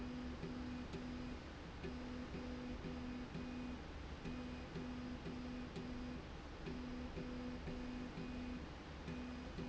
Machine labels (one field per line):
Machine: slide rail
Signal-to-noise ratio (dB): 6 dB